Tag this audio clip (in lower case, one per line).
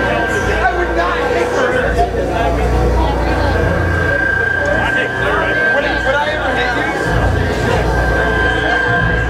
speech
white noise